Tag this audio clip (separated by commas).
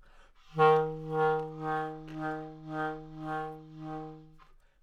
Musical instrument, Music, Wind instrument